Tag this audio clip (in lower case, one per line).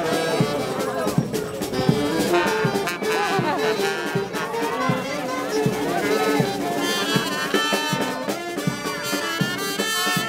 speech
music